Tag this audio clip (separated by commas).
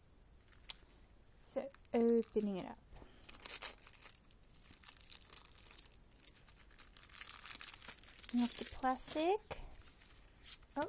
Speech, inside a small room, Crumpling